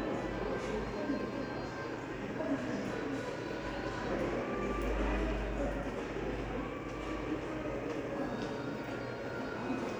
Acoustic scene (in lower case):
crowded indoor space